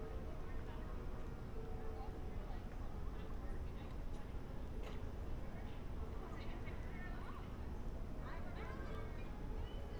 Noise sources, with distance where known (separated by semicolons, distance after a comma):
music from an unclear source, far; person or small group talking, far